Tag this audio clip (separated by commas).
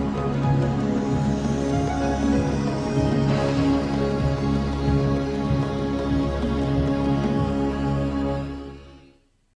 Music